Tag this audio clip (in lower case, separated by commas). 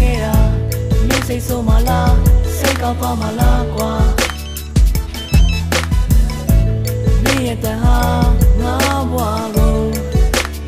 ringtone, music, telephone bell ringing